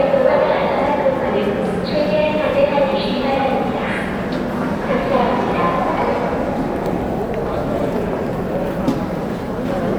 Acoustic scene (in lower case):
subway station